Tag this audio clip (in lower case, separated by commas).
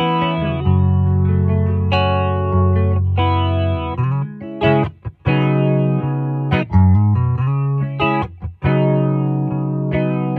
bass guitar, music